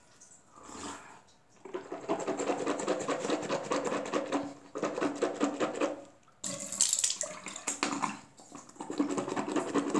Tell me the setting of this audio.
restroom